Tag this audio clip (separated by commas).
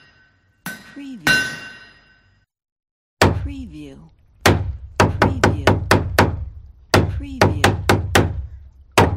hammering nails